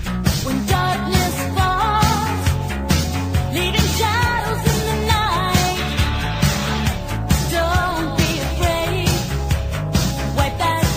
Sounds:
music

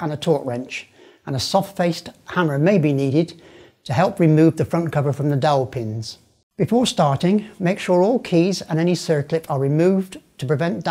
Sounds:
speech

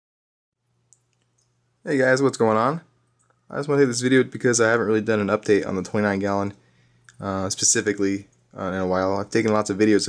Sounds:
speech, inside a small room

